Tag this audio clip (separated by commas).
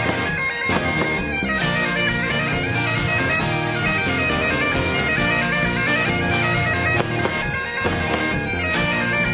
playing bagpipes